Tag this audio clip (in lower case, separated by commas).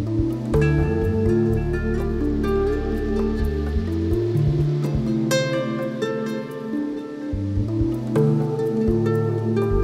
outside, urban or man-made, music